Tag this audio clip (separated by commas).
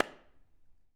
Clapping, Hands